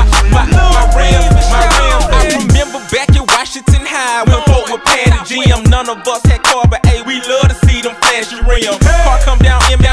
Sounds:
Music

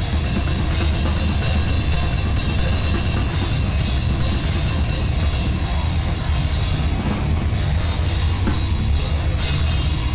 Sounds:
Music, Drum kit, Drum, Bass drum, Musical instrument

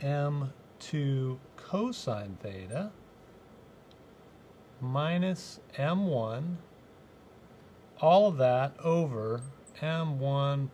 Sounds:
Speech

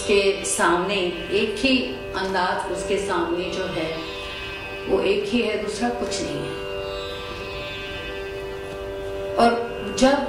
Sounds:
Speech, Music

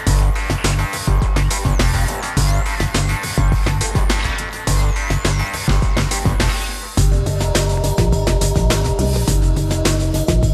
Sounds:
Soundtrack music, Background music, Music

